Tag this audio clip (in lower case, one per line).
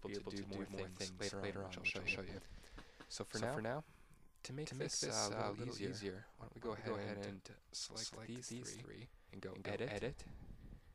speech